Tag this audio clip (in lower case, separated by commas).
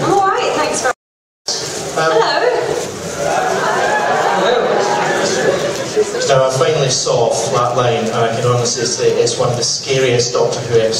inside a public space, speech